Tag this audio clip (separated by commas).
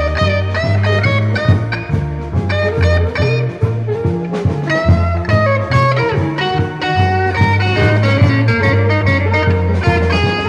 Music